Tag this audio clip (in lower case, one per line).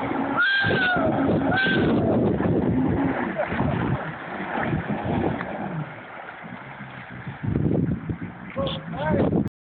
sailboat
speech